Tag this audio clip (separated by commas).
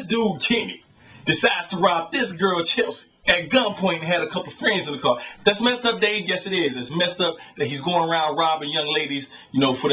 Speech